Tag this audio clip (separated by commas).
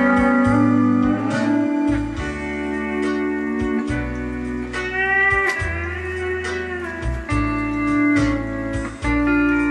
Guitar, Music, slide guitar, Musical instrument